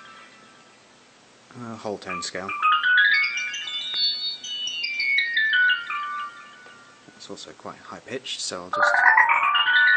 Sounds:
Harp, Pizzicato

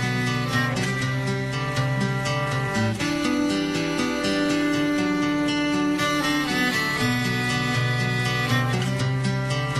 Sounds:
Musical instrument, Music

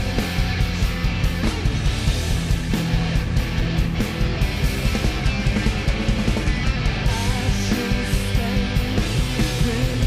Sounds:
Music

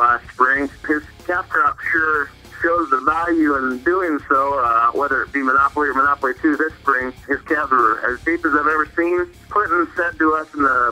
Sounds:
Music, Speech

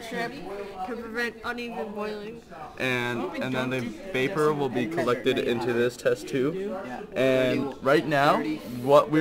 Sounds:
Speech

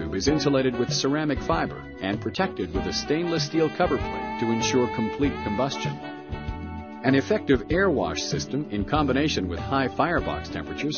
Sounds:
Music, Speech

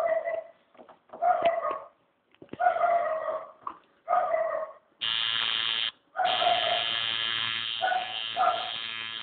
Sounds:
inside a small room, Bark, Dog, canids, Bow-wow

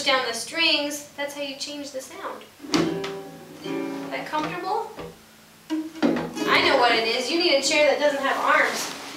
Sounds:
Music, Speech

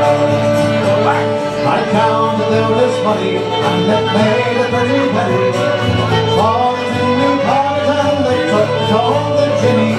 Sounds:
Music

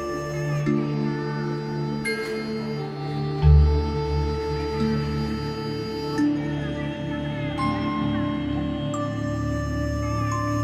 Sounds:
Ambient music, Speech, Music

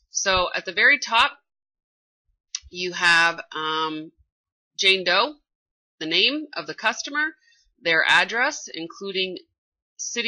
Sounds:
Speech

